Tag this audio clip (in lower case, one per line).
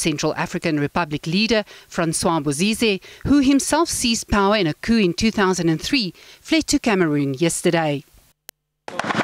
speech